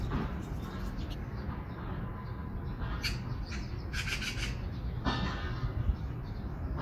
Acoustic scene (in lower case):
park